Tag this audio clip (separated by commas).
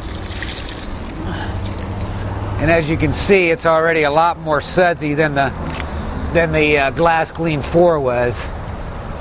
Speech